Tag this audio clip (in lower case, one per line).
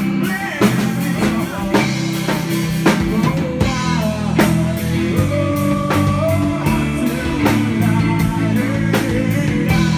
music
male singing